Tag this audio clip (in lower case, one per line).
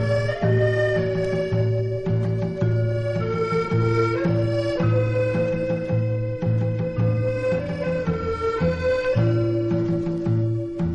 music
musical instrument
guitar